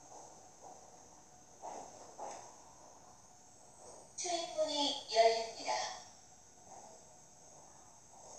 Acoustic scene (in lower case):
subway train